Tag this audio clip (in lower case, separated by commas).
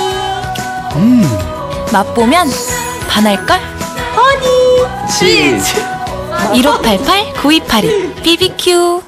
music, speech